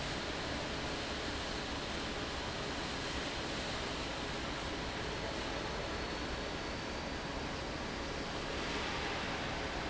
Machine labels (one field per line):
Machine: fan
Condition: abnormal